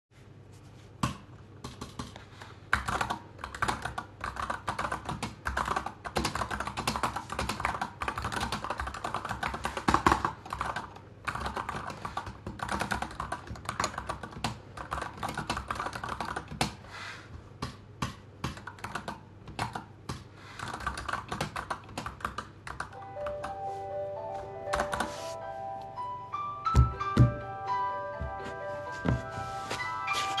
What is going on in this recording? I worked on my computer, then i got a call on my phone.